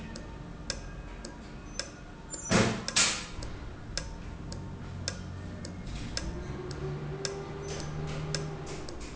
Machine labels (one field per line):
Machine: valve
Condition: normal